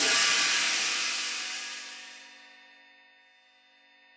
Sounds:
Percussion, Music, Cymbal, Hi-hat, Musical instrument

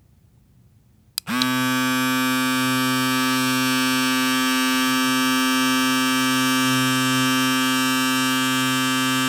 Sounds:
home sounds

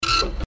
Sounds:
Printer, Mechanisms

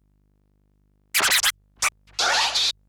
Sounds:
Scratching (performance technique), Music, Musical instrument

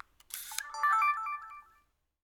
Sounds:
Mechanisms, Camera

